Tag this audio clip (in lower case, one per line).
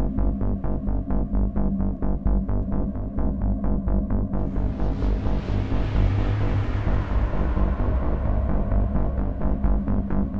music